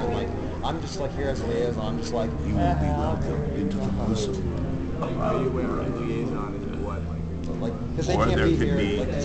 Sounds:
Crowd

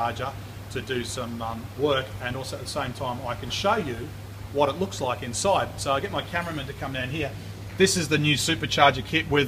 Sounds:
inside a small room, Speech

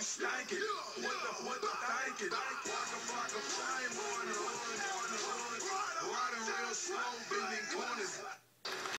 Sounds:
Music

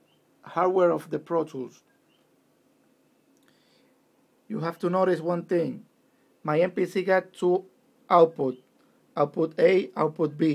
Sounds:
Speech

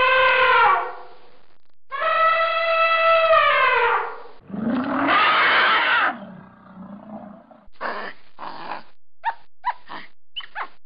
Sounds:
elephant trumpeting

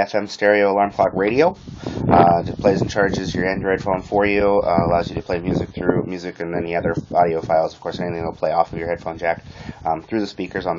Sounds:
Radio, Speech

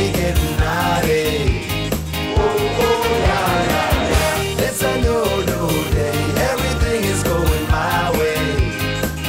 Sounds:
Jingle (music), Singing, Music

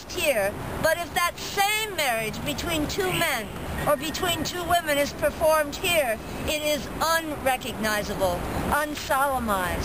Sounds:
outside, urban or man-made, Speech

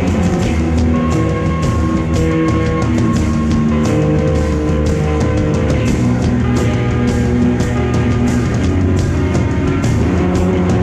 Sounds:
Music

